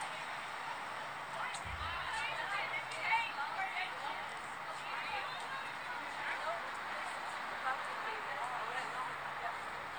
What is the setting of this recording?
street